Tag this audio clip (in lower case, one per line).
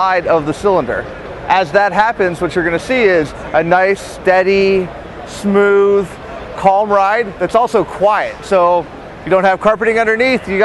speech